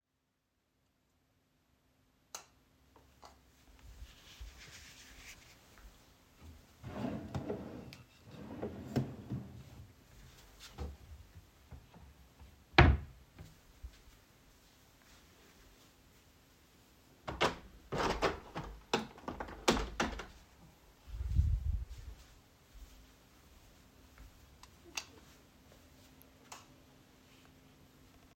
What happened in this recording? I turn on the lights. Then I open a drawer and close it again. Afterwards, I open a window in the room and turn the lights off again.